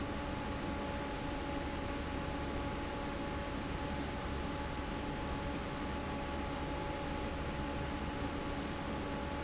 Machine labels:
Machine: fan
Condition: normal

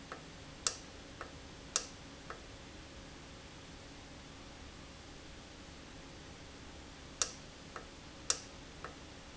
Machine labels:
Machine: valve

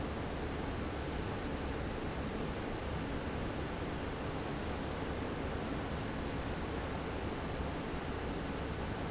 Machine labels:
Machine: fan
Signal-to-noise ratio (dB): -6 dB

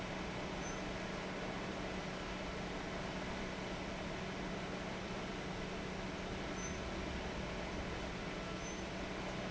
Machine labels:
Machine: fan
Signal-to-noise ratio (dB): 0 dB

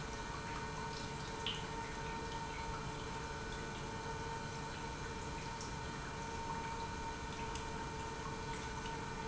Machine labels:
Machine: pump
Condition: normal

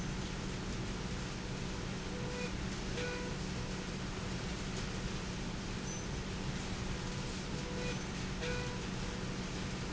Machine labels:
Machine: slide rail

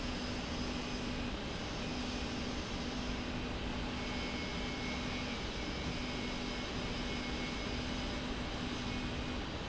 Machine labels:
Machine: slide rail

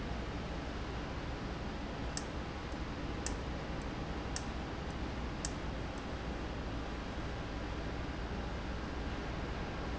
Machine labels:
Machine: valve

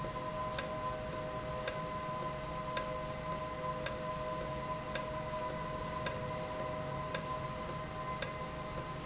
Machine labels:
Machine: valve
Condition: normal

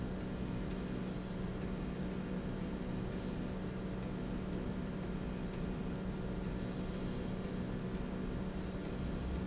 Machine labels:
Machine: slide rail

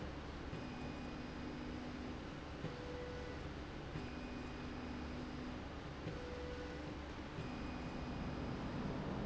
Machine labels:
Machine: slide rail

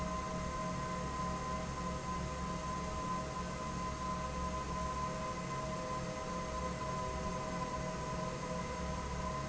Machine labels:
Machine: fan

